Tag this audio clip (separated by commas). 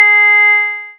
Keyboard (musical), Piano, Music, Musical instrument